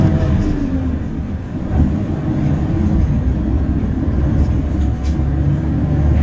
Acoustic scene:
bus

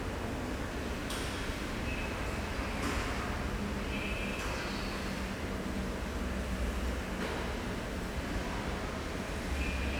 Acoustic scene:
subway station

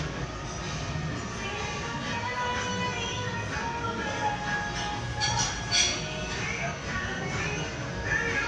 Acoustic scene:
crowded indoor space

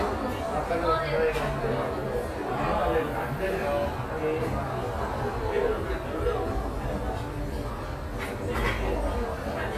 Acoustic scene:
cafe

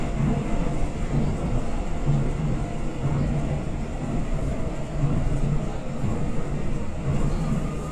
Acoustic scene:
subway train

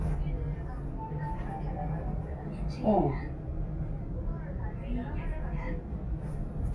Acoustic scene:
elevator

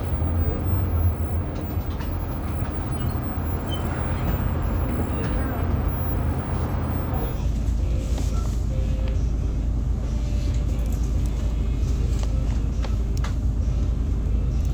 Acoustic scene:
bus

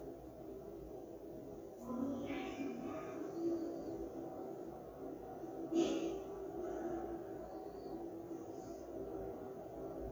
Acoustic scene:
elevator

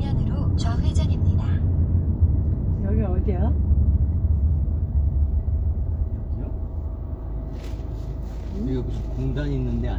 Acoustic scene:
car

